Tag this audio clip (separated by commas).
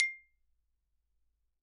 xylophone, Musical instrument, Mallet percussion, Music, Percussion